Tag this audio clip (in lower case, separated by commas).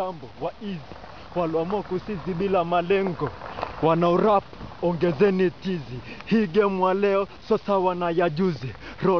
footsteps, speech